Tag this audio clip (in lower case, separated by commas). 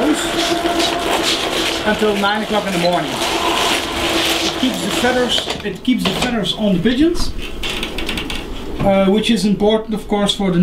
speech